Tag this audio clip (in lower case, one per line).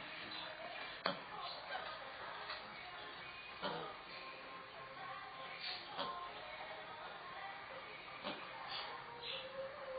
music
mouse